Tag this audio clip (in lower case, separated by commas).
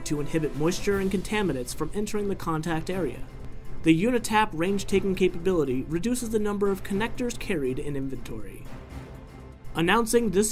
speech, music